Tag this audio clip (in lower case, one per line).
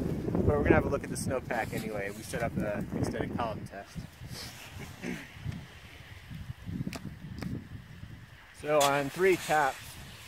speech